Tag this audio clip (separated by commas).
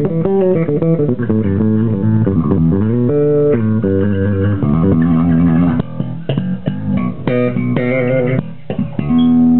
Plucked string instrument, Musical instrument, Guitar, Music, Bass guitar